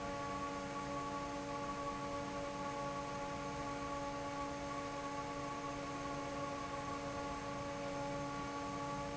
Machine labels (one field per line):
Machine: fan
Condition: normal